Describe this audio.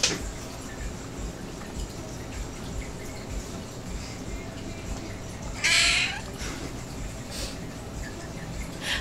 Water is splashing and gurgling and a cat meows, and someone sniffs